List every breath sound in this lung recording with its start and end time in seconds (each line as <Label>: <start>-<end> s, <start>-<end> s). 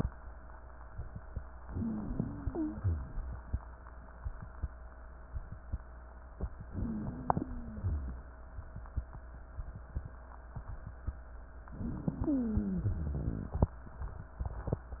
Inhalation: 1.58-2.74 s, 6.66-7.90 s, 11.70-13.72 s
Exhalation: 2.78-3.28 s
Wheeze: 1.58-2.74 s, 2.78-3.28 s, 6.66-7.90 s, 11.70-13.72 s